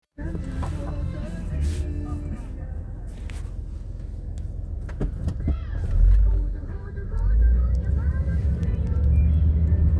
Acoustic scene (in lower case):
car